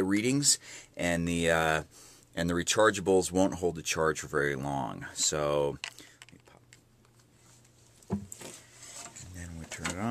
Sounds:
inside a small room
speech

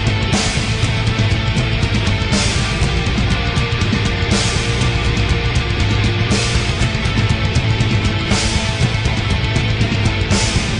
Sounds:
music

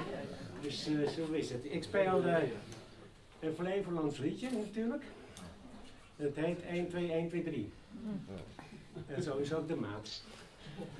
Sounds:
speech

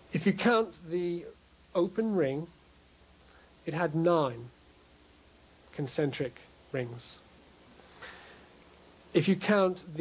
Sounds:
speech

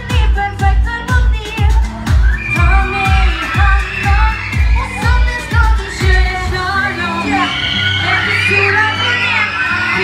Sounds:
inside a large room or hall
music

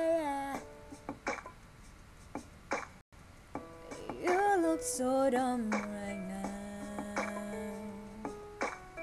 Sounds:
female singing
music

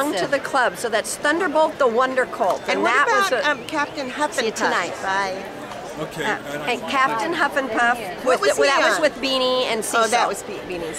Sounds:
speech

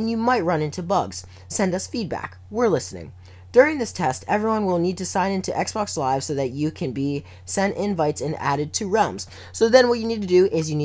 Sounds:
speech

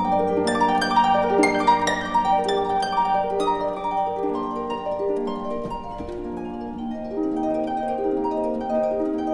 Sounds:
playing harp

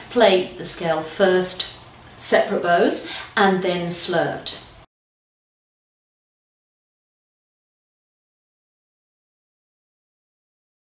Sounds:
speech

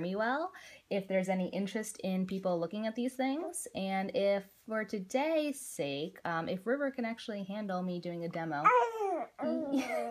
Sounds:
babbling
speech

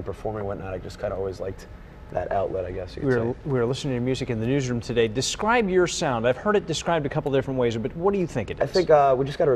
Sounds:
speech

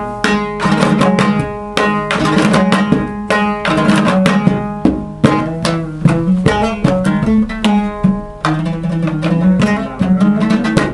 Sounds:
pizzicato

